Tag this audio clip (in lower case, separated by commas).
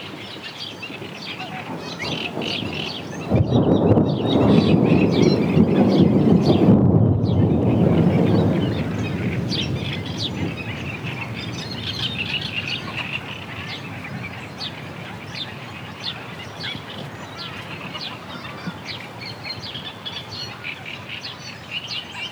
thunder, thunderstorm